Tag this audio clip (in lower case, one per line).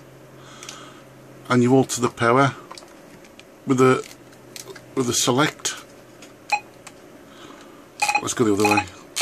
speech